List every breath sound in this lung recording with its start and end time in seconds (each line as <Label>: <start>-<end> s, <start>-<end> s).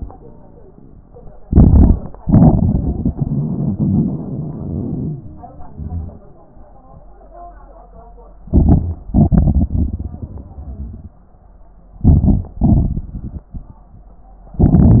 Inhalation: 1.42-2.09 s, 8.48-9.01 s, 12.04-12.54 s, 14.58-15.00 s
Exhalation: 2.20-6.28 s, 9.09-11.16 s, 12.61-13.90 s
Wheeze: 0.15-0.83 s, 9.98-10.97 s
Crackles: 8.48-9.01 s, 12.10-12.52 s